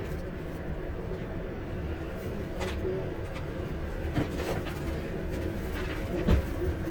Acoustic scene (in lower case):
bus